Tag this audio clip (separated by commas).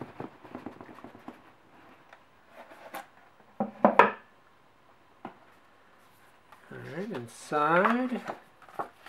Speech